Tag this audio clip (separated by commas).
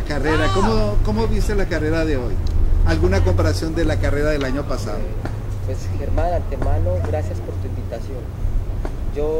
Male speech, outside, urban or man-made, Speech